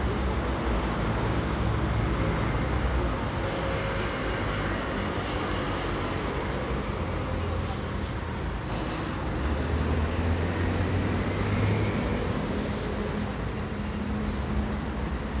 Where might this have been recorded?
on a street